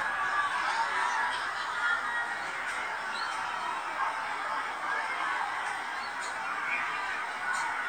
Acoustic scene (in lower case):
residential area